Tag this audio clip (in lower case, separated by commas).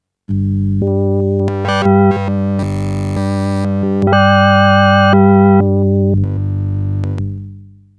keyboard (musical), musical instrument, music